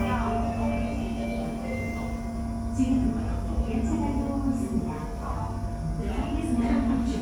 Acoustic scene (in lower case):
subway station